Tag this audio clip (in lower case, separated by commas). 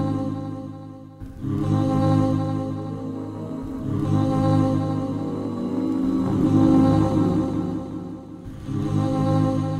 music